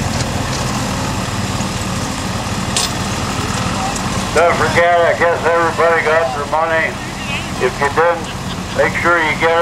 A truck sits in idle as a man speaks over a speaker